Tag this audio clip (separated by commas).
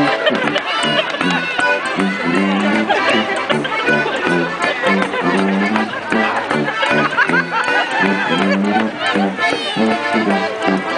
Speech, Music